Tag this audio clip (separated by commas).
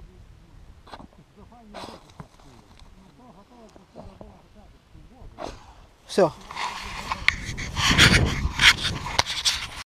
Speech